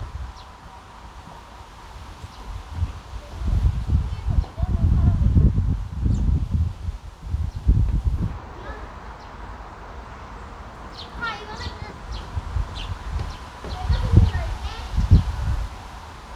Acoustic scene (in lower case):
park